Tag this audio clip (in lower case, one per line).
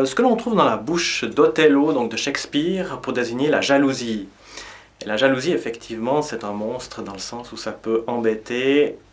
speech